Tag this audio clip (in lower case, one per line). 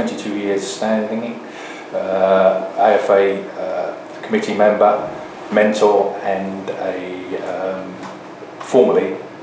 speech